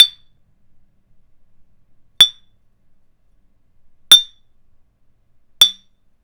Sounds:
chink
glass

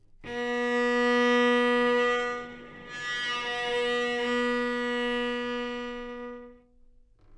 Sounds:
musical instrument
bowed string instrument
music

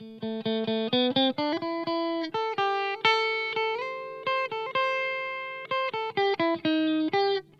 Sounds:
musical instrument
electric guitar
music
guitar
plucked string instrument

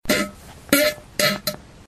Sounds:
fart

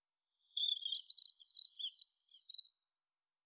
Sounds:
animal
wild animals
bird

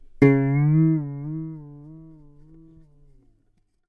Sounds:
musical instrument
guitar
music
plucked string instrument

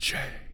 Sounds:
human voice
whispering

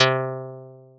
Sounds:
plucked string instrument
music
musical instrument
guitar

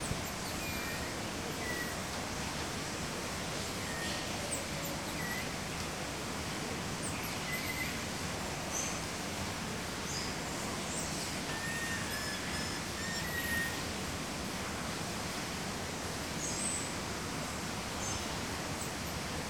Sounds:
water

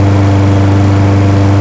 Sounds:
engine
idling

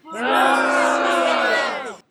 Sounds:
human group actions
crowd

